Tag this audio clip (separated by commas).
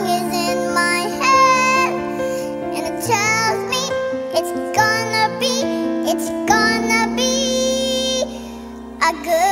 Tender music, Music